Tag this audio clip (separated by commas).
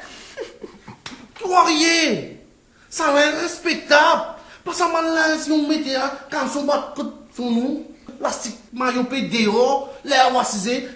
Laughter, Speech